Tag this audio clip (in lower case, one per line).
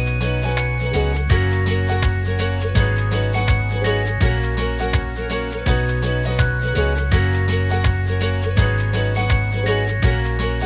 music